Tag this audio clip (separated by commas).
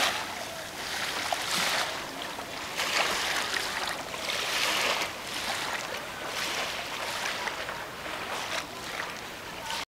Speech